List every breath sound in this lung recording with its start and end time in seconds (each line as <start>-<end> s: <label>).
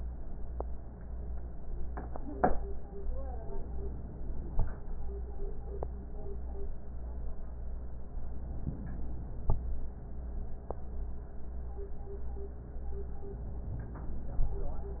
3.48-4.51 s: inhalation
8.45-9.47 s: inhalation